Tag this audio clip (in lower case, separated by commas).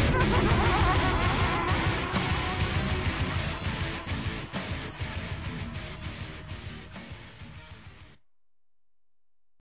theme music, music